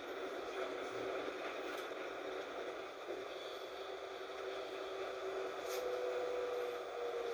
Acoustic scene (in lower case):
bus